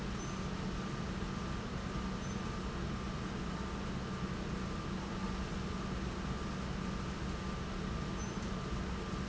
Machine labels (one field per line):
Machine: pump